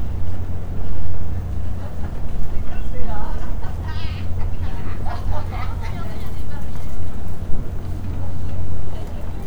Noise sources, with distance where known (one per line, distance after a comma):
medium-sounding engine, near
person or small group talking, near